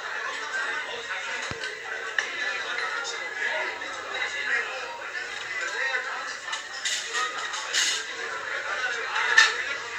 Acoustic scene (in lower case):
crowded indoor space